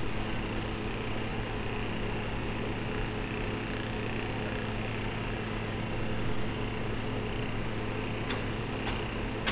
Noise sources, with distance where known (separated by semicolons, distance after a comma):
unidentified impact machinery